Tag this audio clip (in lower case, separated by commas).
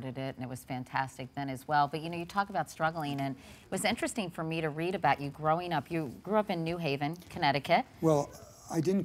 speech